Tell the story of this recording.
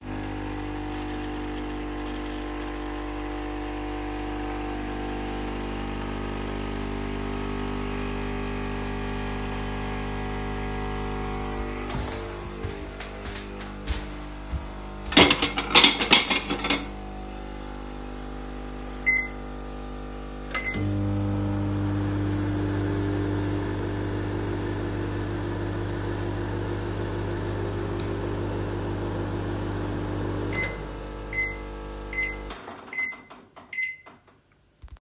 I used the coffee machine to prepare a coffee, then I walked to the dishes and took some plates. Afterwards I turned on the microwave.